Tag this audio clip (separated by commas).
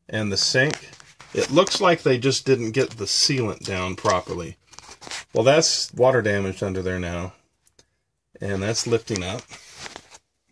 Speech, inside a small room